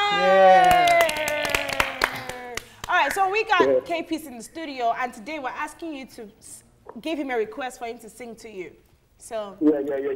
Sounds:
Speech

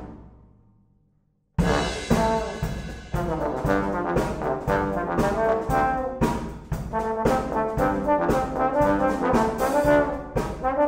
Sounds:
playing trombone

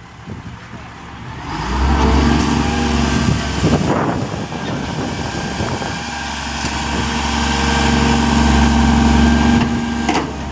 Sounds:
Engine knocking, Vehicle, Truck, Engine

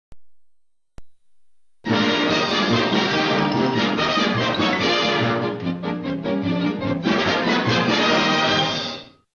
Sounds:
Music

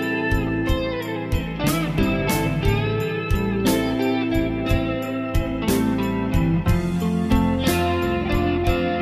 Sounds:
Music

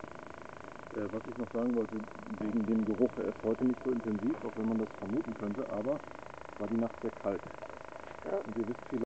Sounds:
Speech

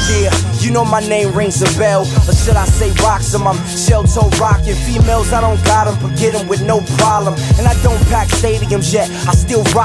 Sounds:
Music

